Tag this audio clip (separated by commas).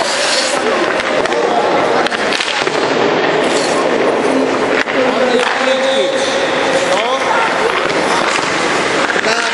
Firecracker, Speech